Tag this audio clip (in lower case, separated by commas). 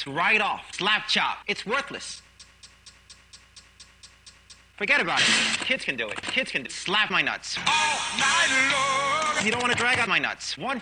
music, speech